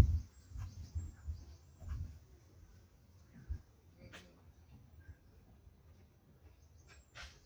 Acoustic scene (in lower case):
park